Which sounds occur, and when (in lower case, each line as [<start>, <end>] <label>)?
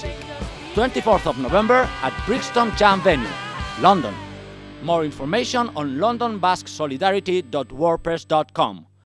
[0.00, 4.39] female singing
[0.00, 9.05] music
[0.18, 0.29] tick
[0.75, 1.89] man speaking
[2.00, 3.31] man speaking
[3.77, 4.11] man speaking
[4.81, 8.87] man speaking